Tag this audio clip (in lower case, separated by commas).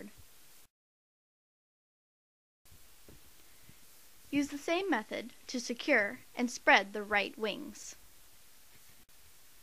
speech